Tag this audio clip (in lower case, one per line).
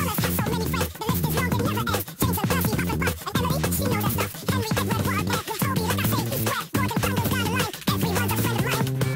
music